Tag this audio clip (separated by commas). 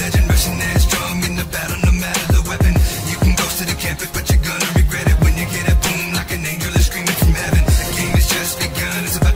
Hip hop music, Music